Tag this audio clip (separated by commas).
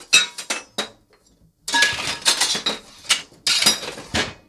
Tools